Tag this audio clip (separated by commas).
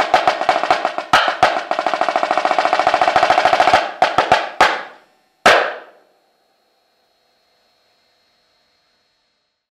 Music